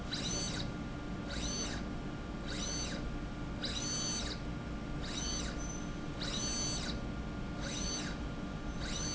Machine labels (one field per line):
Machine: slide rail